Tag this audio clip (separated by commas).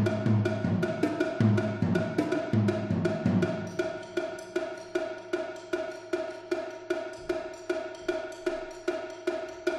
Music